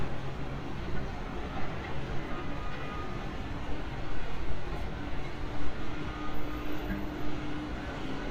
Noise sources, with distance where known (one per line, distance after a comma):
medium-sounding engine, far